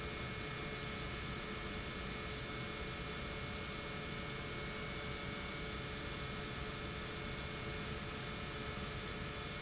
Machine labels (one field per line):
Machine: pump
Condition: normal